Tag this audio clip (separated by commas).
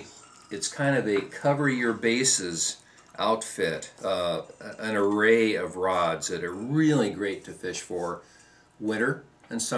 Speech